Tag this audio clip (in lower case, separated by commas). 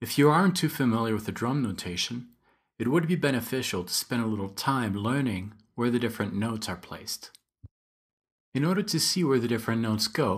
speech